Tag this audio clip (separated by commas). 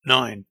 Speech, Male speech, Human voice